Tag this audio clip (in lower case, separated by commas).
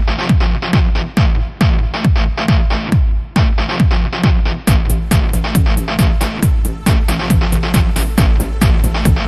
trance music